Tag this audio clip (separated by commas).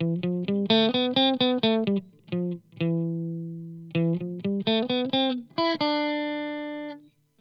Electric guitar, Music, Musical instrument, Guitar, Plucked string instrument